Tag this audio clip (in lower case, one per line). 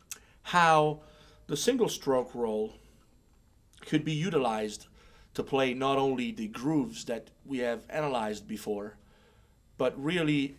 speech